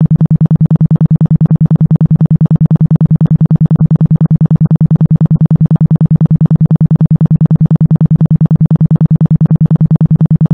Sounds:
Music

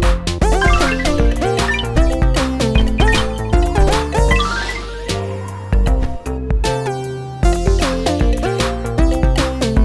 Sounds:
Music

